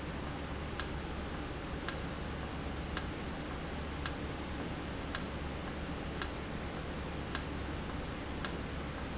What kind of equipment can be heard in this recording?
valve